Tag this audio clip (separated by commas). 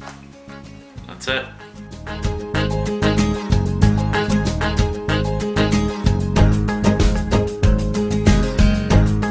Music, Speech